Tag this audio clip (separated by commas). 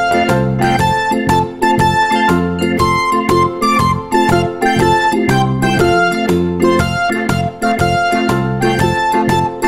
Music